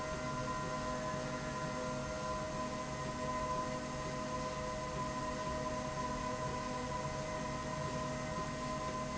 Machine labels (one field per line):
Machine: slide rail